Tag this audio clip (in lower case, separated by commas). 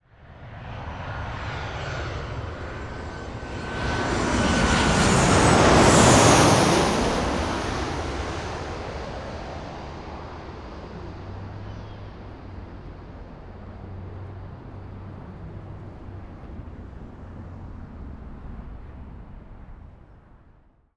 aircraft, vehicle, fixed-wing aircraft